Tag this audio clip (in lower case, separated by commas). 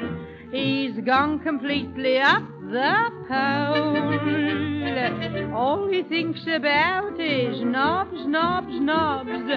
music, speech